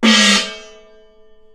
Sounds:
Musical instrument, Gong, Music, Percussion

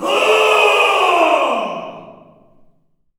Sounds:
Human voice, Screaming, Yell, Shout

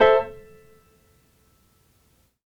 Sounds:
Piano, Musical instrument, Keyboard (musical), Music

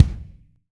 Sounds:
Drum, Music, Musical instrument, Percussion, Bass drum

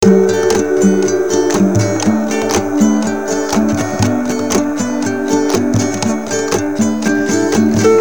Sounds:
Guitar, Acoustic guitar, Music, Musical instrument, Plucked string instrument

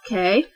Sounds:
Human voice, Speech, woman speaking

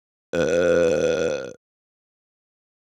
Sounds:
eructation

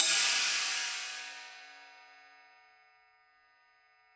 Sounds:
Cymbal, Music, Hi-hat, Musical instrument, Percussion

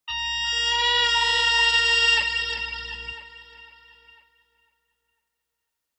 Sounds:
Plucked string instrument, Guitar, Musical instrument, Music

